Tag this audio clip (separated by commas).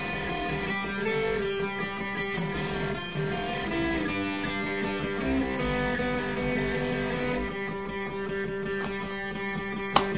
Music, Heavy metal